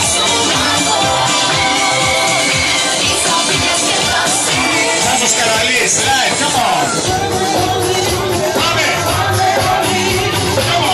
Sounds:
speech
music

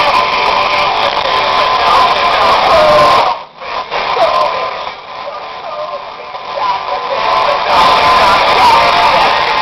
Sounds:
music

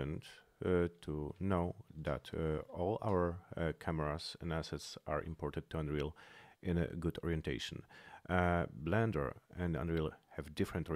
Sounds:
speech

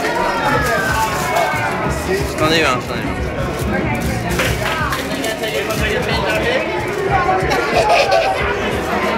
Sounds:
music
speech

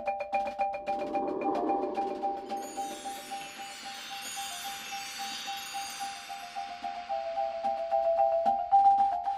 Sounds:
percussion
music

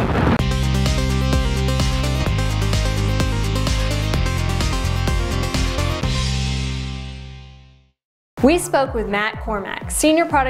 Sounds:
speech
music

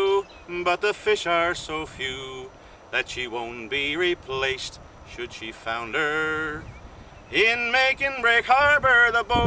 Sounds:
male singing

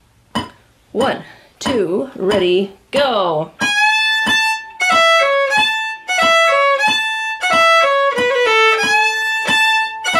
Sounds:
musical instrument
speech
music
fiddle

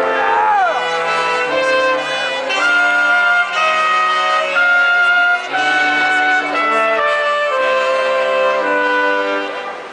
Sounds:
music

